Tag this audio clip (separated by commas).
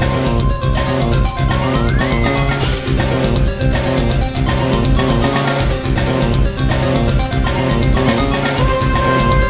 Music